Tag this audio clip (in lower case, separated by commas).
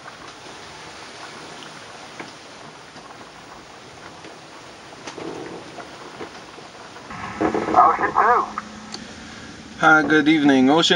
vehicle, speech, water vehicle